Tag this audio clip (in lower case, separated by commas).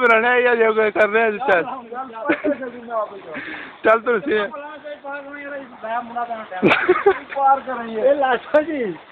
speech